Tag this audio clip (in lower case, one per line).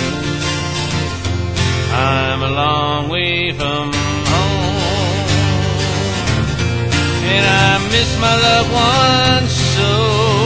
music